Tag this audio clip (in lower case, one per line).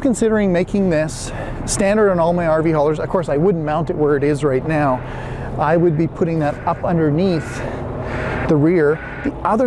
reversing beeps